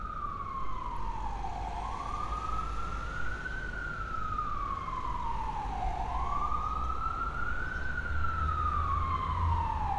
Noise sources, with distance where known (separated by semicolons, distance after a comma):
siren